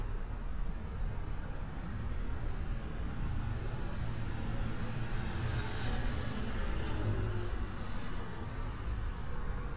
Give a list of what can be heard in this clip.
medium-sounding engine